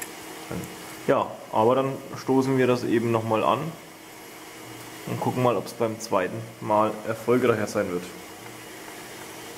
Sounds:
Speech

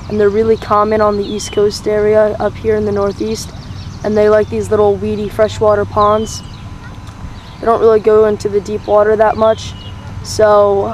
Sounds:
Speech

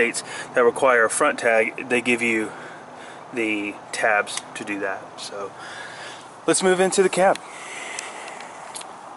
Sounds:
Vehicle, Speech

